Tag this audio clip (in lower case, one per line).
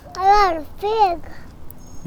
human voice
child speech
speech